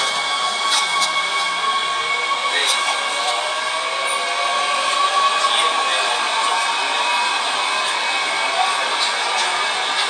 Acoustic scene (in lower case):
subway train